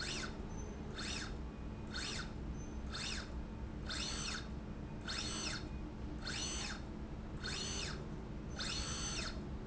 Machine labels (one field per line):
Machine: slide rail